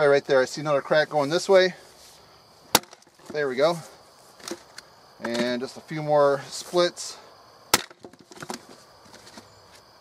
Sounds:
Wood

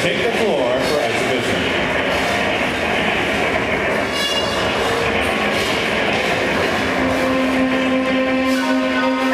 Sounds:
Music, Speech

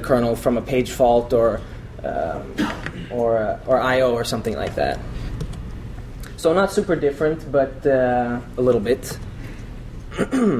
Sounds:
Speech

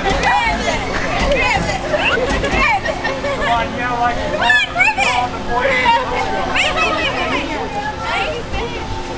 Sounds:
Speech

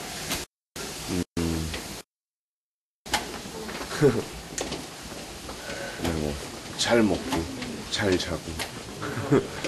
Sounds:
Speech

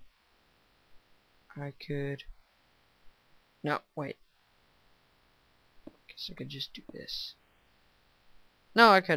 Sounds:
Narration

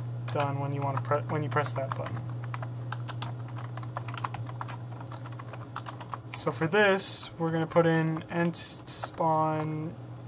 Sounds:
Computer keyboard, Typing, Speech

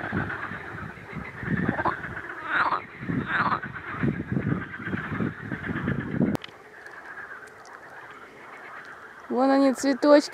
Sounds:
frog croaking

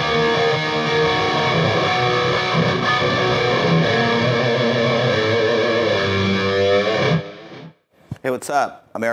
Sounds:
Music, Electric guitar, Speech, Guitar, Strum, Musical instrument, Plucked string instrument

